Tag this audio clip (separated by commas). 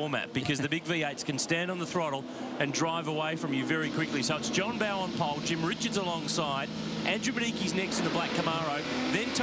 Car passing by, Speech